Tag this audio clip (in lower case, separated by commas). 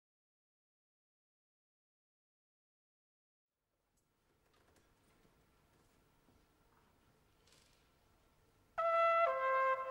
trumpet, musical instrument, brass instrument, music